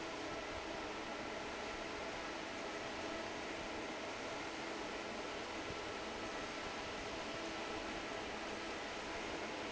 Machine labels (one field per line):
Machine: fan